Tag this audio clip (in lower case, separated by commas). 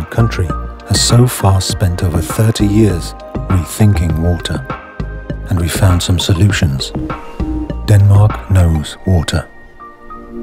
speech, music